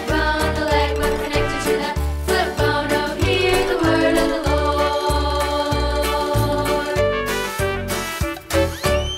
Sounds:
music

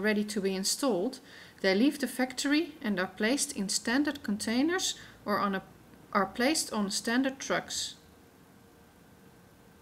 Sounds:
speech

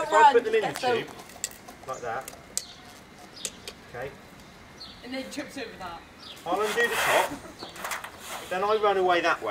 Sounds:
speech

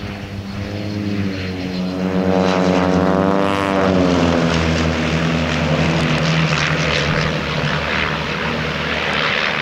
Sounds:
airplane flyby

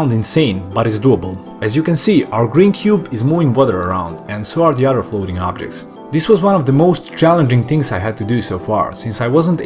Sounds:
speech
music

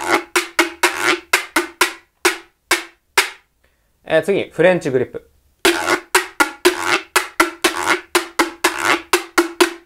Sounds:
playing guiro

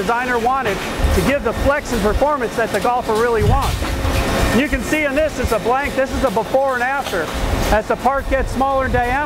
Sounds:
speech

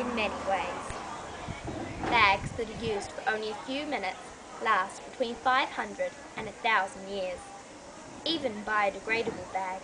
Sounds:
speech
narration
female speech

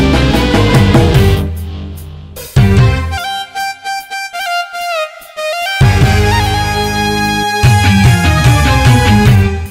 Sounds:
music

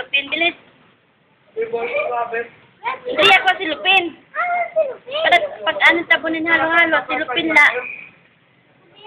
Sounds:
speech

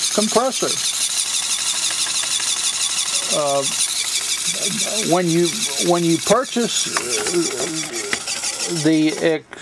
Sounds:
inside a small room
speech

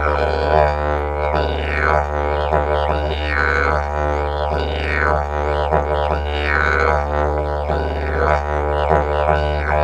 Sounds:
playing didgeridoo

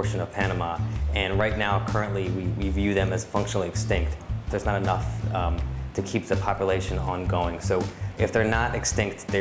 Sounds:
speech
music

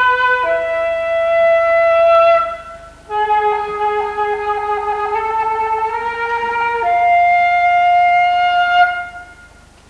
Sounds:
playing flute
classical music
inside a large room or hall
music
musical instrument
wind instrument
flute

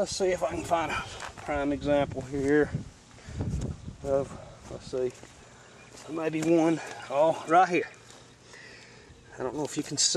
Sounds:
speech

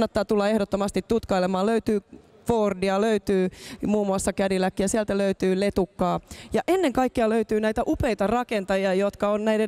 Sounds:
speech

